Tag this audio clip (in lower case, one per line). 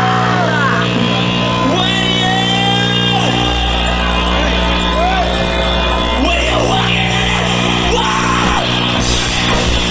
music